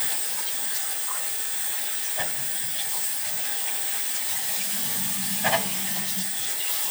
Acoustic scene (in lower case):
restroom